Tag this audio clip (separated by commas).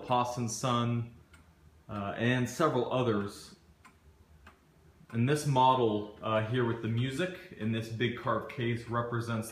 Speech